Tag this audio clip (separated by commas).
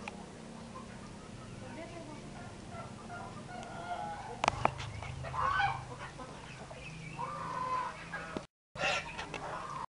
livestock, Bird, Speech, Pig, Animal